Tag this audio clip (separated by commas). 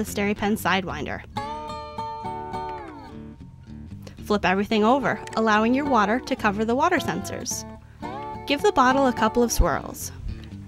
Speech, Music